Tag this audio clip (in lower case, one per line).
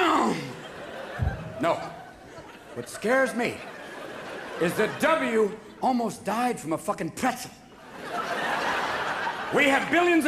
speech